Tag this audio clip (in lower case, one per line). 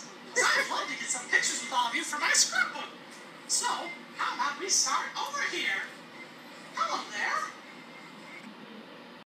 speech